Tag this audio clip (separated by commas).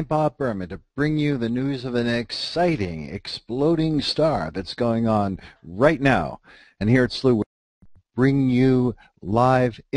Speech